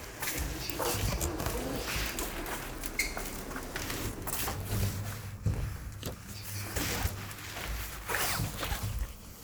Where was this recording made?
in an elevator